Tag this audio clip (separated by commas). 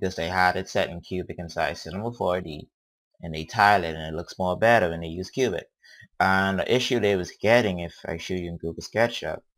Speech